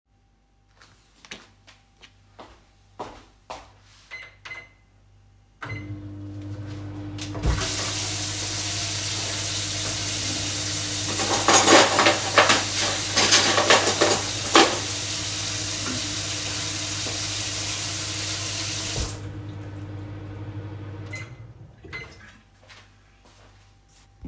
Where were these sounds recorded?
kitchen